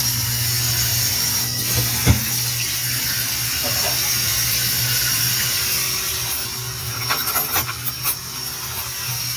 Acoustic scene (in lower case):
kitchen